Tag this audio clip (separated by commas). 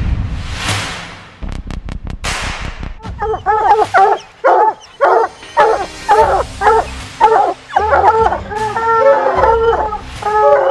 dog baying